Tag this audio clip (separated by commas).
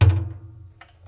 thud